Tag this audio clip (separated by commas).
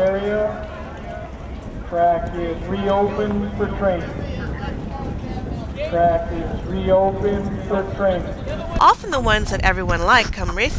Speech